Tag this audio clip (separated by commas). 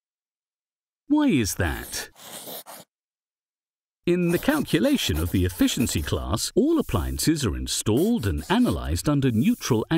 Speech